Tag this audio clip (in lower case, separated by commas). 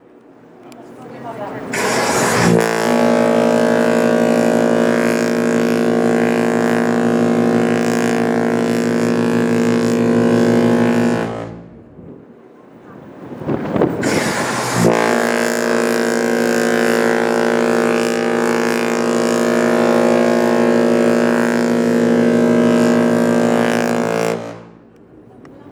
vehicle, boat